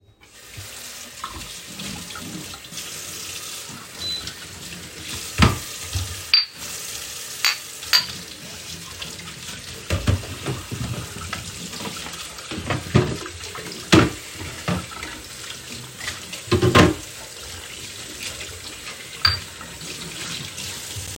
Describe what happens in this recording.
I was washing dishes in the kitchen sink. The beep in the background stems from the paused dishwasher.